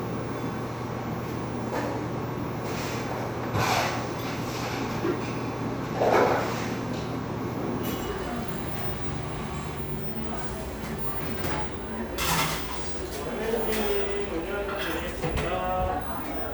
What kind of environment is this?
cafe